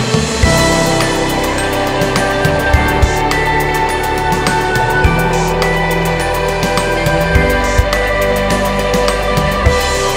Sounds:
background music, music

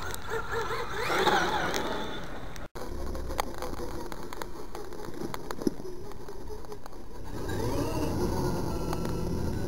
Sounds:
vehicle

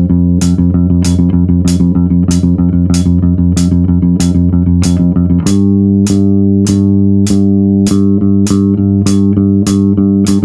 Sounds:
playing bass guitar

